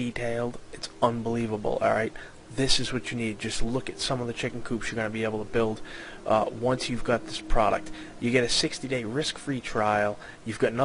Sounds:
Speech

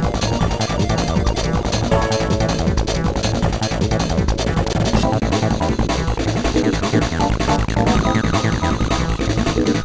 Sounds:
Electronic music, Techno, Music

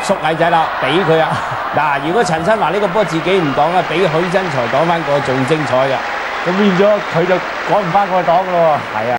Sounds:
Speech

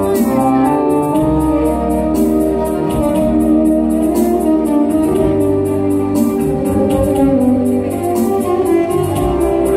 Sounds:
Speech, Music

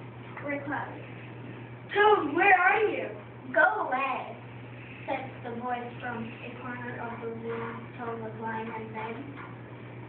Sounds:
Speech

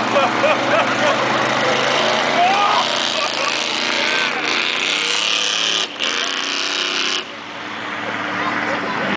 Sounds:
Truck, Vehicle, Speech

